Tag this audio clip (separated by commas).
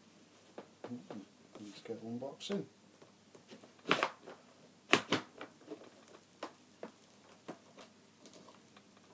Speech